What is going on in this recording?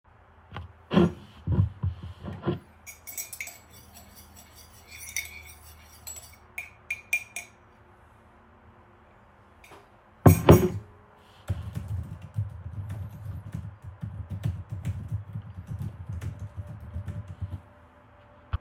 I'm working on a research paper, while I'm drinking tea.